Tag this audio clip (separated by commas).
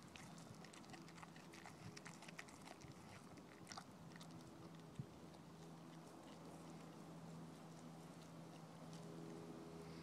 Animal, Dog, Domestic animals